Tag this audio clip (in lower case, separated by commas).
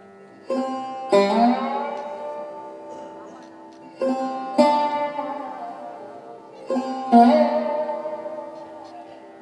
speech, classical music, music, bowed string instrument